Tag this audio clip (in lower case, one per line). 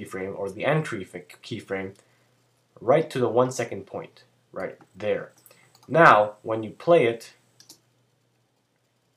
computer keyboard